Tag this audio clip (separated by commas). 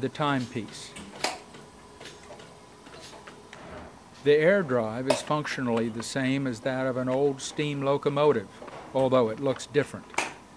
Tick-tock, Speech